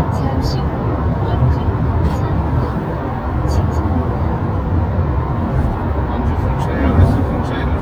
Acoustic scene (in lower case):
car